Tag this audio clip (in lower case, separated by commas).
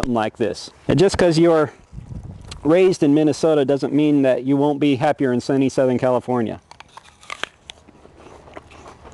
biting, outside, urban or man-made, speech